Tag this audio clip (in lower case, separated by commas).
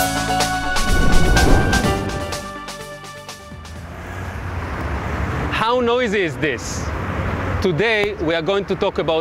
music, field recording, speech